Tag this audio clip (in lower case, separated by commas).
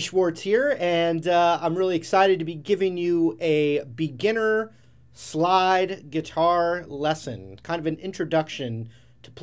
speech